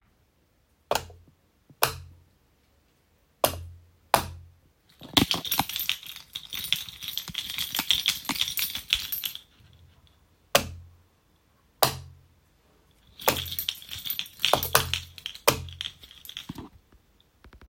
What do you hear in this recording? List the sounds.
light switch, keys